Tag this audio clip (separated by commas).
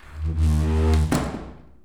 Door, Domestic sounds, Slam